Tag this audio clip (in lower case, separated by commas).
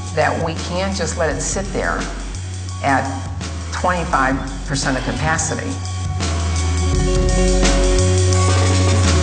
music, speech